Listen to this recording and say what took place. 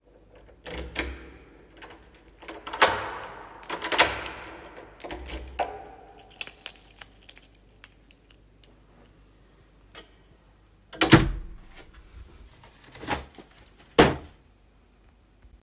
I turned the key inside the lock, after that keychain is heard, then I opened the door and put the bags on the floor and dropped one item(accidentally)